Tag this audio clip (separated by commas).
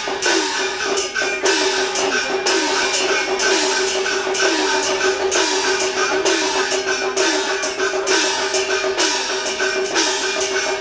Tambourine, Music